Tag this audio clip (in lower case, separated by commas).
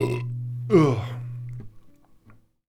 burping